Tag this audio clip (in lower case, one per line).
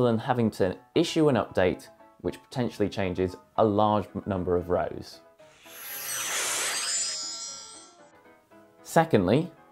speech
music